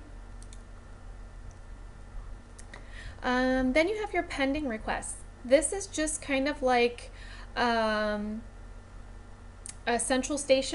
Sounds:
Speech

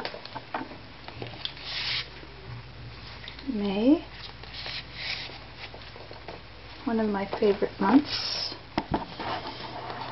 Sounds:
Speech

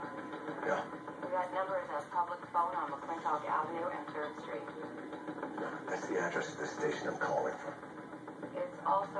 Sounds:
Speech, Television

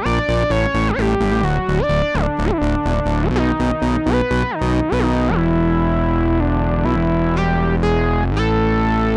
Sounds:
playing synthesizer

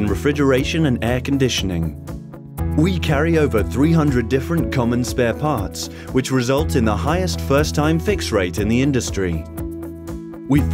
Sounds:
Speech, Music

